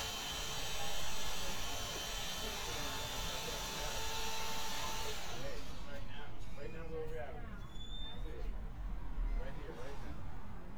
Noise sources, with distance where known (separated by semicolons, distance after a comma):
unidentified powered saw, near; person or small group talking, near